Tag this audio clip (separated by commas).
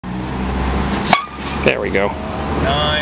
Speech